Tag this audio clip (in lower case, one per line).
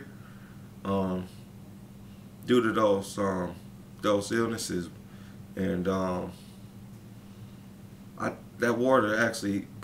speech